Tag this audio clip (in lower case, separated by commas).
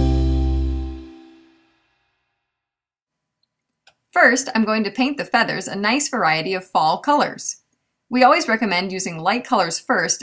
music, speech